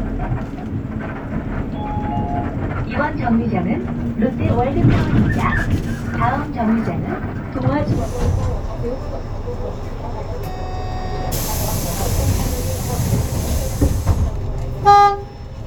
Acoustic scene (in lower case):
bus